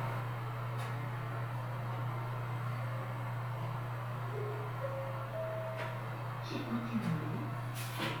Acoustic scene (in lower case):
elevator